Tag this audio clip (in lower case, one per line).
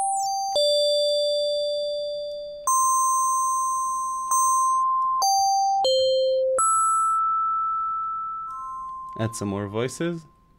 music
speech
synthesizer